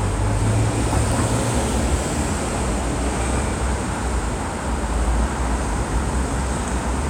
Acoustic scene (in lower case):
street